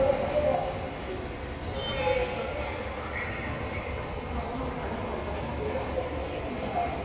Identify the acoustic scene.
subway station